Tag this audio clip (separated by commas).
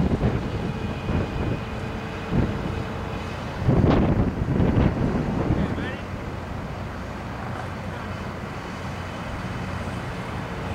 Speech